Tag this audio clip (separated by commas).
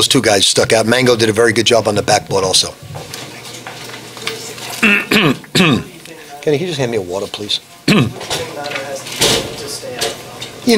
Speech, Frying (food)